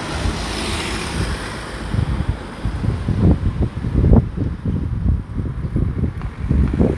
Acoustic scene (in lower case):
residential area